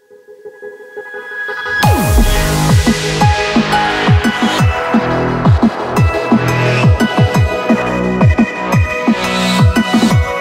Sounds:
Music, Dubstep

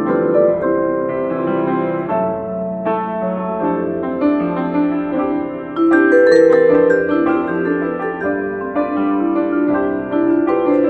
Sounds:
playing vibraphone

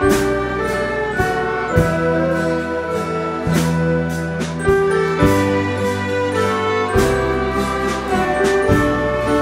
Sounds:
Wedding music, Music

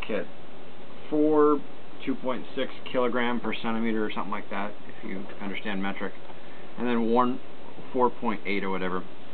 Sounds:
Speech

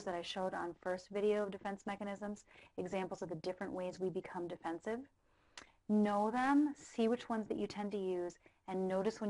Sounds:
Speech

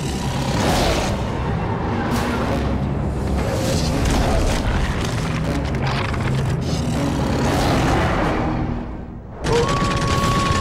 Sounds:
Boom, Music

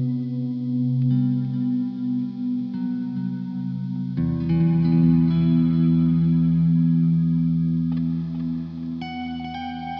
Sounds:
Distortion, Music, Ambient music

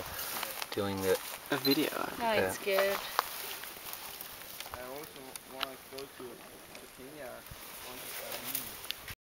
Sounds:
Speech

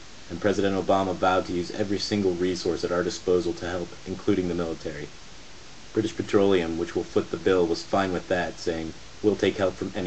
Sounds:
Speech

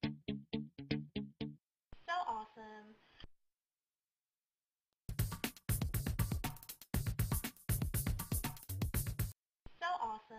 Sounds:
Speech, Music

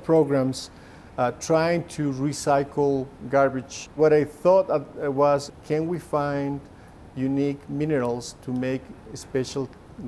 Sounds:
Speech

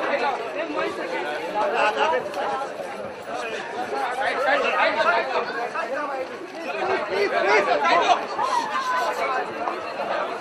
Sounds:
Speech

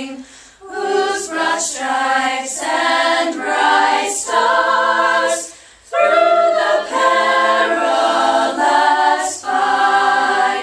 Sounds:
Choir, Female singing

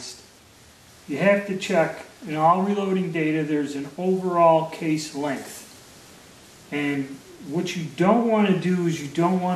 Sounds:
inside a large room or hall, Speech

